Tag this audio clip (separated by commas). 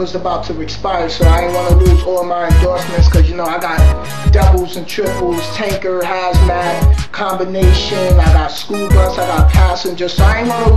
Music, Speech